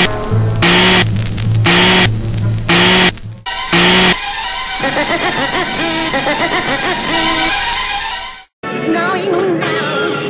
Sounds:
music

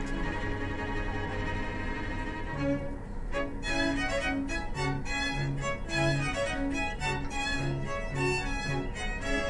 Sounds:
music, bowed string instrument

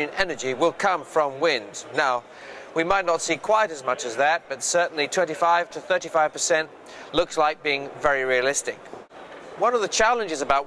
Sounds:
wind noise (microphone), speech

